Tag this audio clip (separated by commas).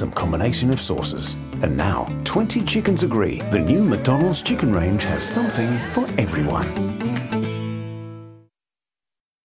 Music, Speech